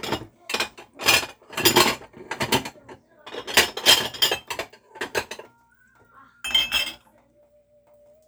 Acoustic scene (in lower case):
kitchen